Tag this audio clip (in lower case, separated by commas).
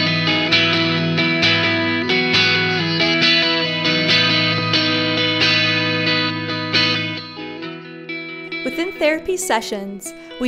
speech, music